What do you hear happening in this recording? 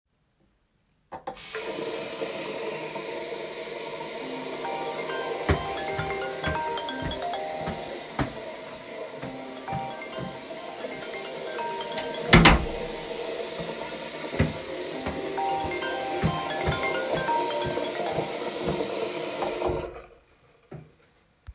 I turned on the water tap and my phone started ringing. While the water was running and the phone was ringing, I walked across the bathroom, closed the door, and continued walking for a few more steps.